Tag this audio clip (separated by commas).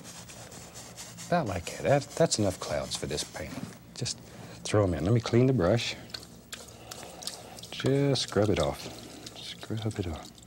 Water